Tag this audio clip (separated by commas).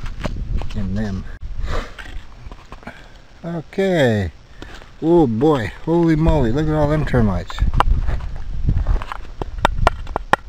Speech